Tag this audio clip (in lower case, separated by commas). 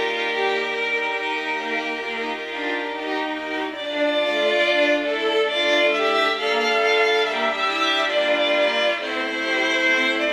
violin, music, musical instrument